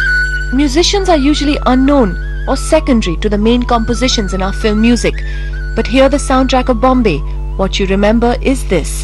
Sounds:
music, speech

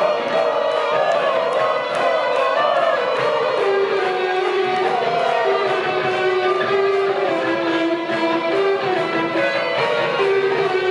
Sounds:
guitar, acoustic guitar, musical instrument, plucked string instrument, strum, music

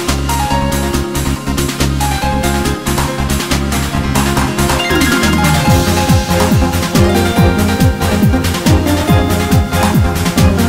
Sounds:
music

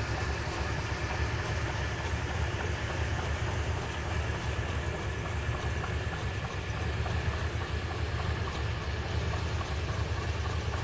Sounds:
vehicle, car

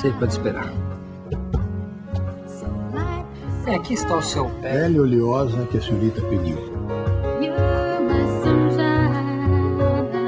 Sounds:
speech, music

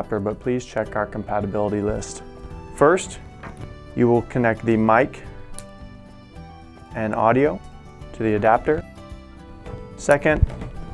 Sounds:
music, speech

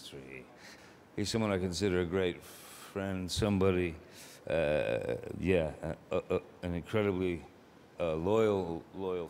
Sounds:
narration, speech, man speaking

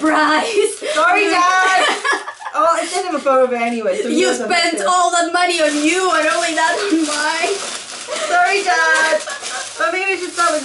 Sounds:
speech, inside a small room

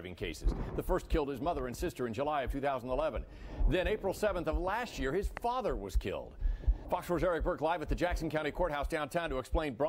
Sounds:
speech

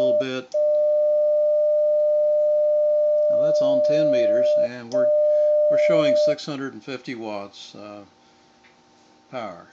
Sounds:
bleep

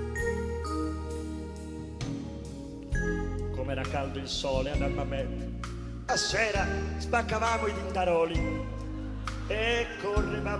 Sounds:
speech, music

